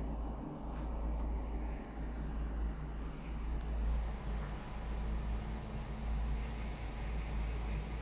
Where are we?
on a street